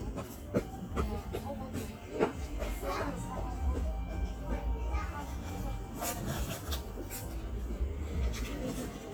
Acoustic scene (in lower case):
park